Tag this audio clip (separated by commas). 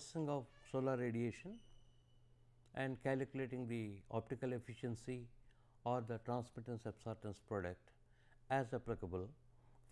Speech